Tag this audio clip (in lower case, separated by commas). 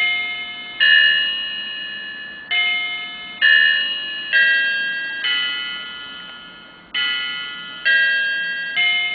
music, clock